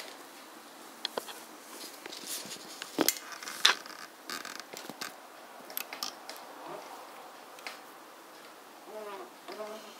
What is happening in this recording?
Someone moving and the chair squeaking slightly is heard